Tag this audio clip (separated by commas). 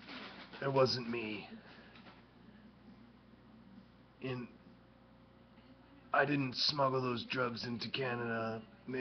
Speech